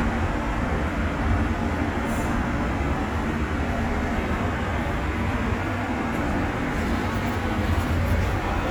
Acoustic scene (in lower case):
subway station